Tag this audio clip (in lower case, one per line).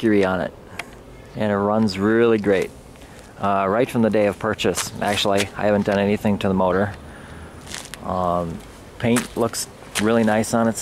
speech